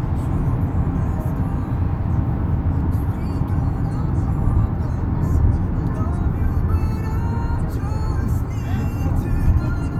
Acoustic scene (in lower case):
car